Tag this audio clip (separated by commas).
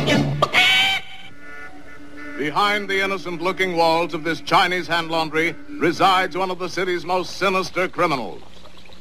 Speech, Music